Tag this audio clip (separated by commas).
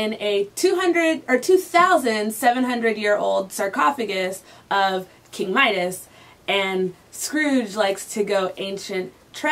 Speech